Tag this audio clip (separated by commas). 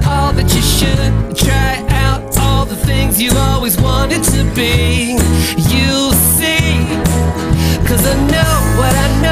Music